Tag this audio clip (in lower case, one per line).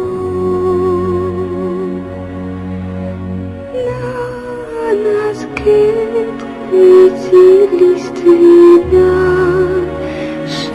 lullaby
music